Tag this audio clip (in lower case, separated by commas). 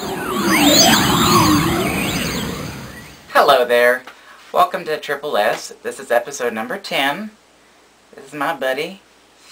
inside a small room, speech